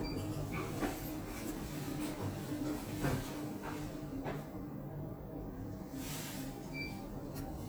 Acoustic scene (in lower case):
elevator